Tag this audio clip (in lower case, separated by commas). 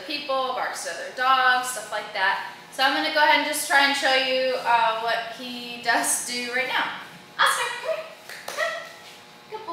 speech